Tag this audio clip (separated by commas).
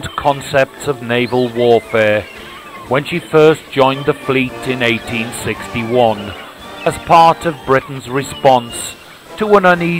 Speech